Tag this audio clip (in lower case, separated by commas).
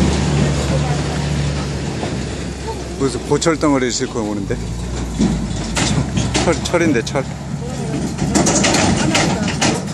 speech, air brake, vehicle